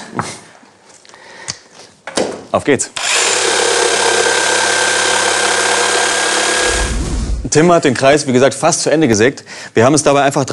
Man speaking followed by tool drilling sounds